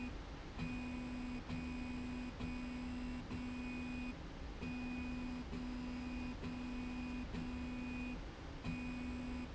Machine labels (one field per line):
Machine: slide rail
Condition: normal